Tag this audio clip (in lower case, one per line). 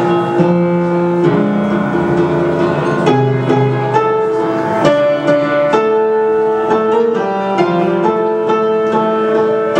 musical instrument
music